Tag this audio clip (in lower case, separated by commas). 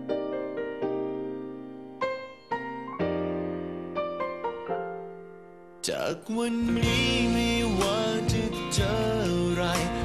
piano